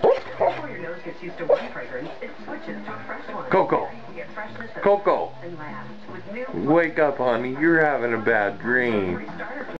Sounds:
Dog, Speech, Animal, Bow-wow, Domestic animals, Music

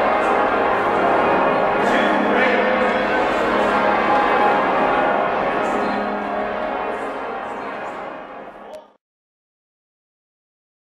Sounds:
Music, Speech

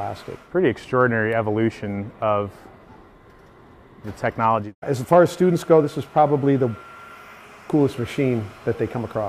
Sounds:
Speech

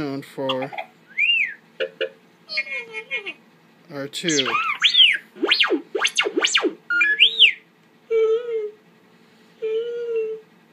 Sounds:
Speech

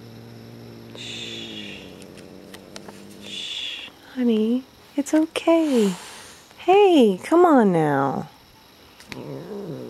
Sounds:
Speech

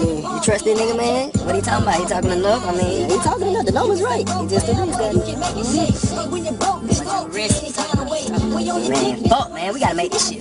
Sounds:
Conversation, Music, Funk, Speech

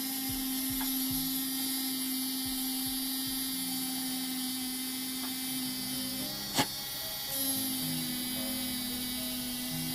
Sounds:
Mains hum

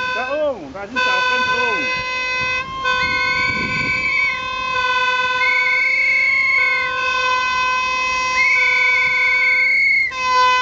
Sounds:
Toot, Speech

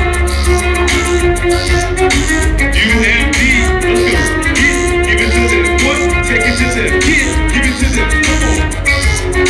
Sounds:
Music, Musical instrument, Speech, fiddle

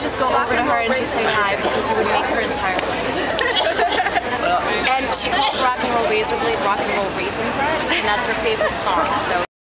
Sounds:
Speech, Walk

